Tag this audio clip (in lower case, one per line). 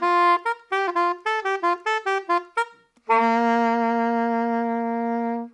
woodwind instrument
music
musical instrument